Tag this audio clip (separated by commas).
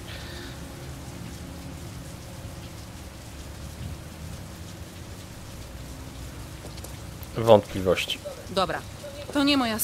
Rain on surface, Speech